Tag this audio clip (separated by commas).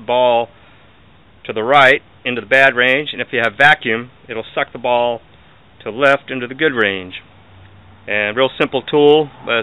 Speech